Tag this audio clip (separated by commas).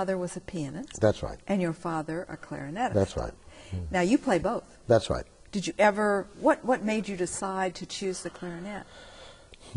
Speech